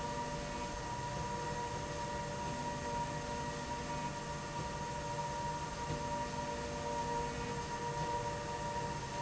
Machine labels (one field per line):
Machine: slide rail